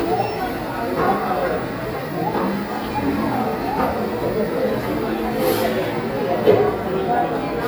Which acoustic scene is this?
cafe